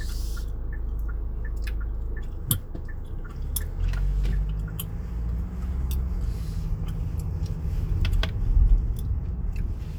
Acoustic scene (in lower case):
car